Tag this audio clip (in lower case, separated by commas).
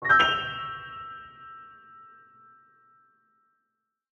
keyboard (musical), music, musical instrument, piano